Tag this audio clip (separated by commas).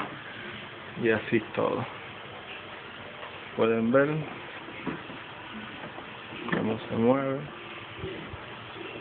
Speech